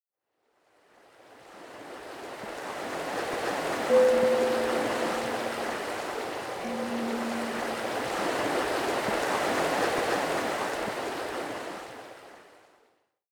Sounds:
water, ocean

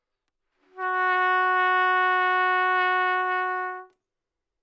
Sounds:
trumpet, musical instrument, music, brass instrument

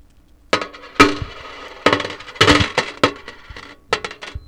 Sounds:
home sounds, coin (dropping)

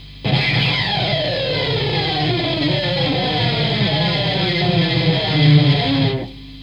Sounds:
music, guitar, plucked string instrument, musical instrument

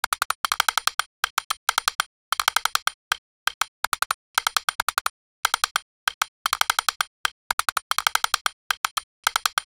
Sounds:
typing, domestic sounds

